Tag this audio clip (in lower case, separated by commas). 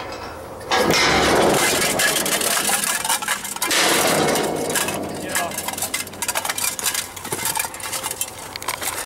speech